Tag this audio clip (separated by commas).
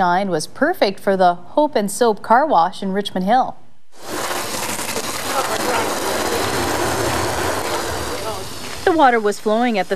Speech